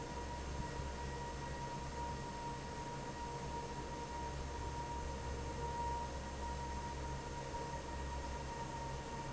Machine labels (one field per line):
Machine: fan